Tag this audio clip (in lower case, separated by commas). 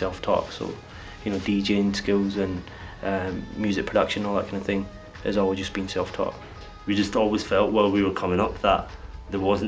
speech, music